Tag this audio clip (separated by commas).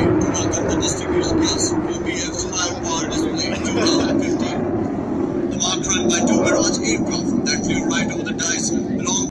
Speech